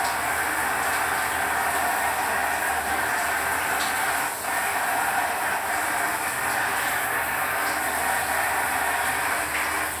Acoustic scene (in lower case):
restroom